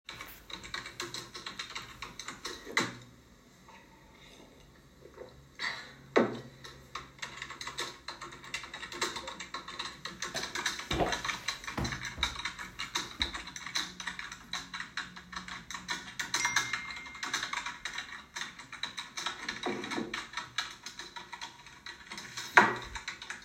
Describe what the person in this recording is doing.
My sister was working on her school assignment and drinking tea, she sipped from the cup, then, as she was typing moved on her chair a bit, then moved her things on the table. Then she received a notification.